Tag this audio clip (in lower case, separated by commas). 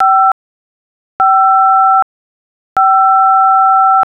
alarm, telephone